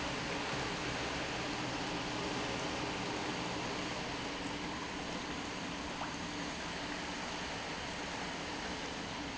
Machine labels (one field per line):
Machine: pump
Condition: normal